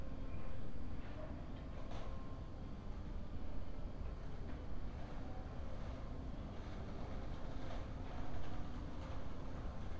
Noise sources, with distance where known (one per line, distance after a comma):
background noise